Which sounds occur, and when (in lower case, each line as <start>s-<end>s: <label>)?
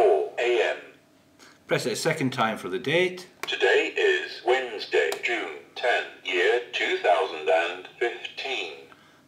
0.0s-0.9s: speech synthesizer
0.0s-9.2s: mechanisms
1.3s-1.6s: human sounds
1.7s-3.2s: male speech
3.4s-3.4s: tick
3.4s-5.5s: speech synthesizer
5.0s-5.1s: tick
5.7s-6.1s: speech synthesizer
6.2s-6.6s: speech synthesizer
6.7s-7.8s: speech synthesizer
8.0s-8.8s: speech synthesizer
8.8s-9.2s: breathing